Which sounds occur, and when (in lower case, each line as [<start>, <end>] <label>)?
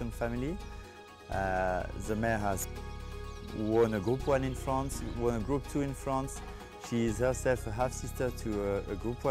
[0.00, 0.56] male speech
[0.00, 9.30] music
[0.57, 0.70] tweet
[0.61, 0.83] breathing
[1.28, 1.84] male speech
[2.04, 2.62] male speech
[3.27, 3.41] tweet
[3.53, 6.37] male speech
[3.99, 4.16] tweet
[5.33, 5.49] tweet
[6.47, 6.70] breathing
[6.80, 9.30] male speech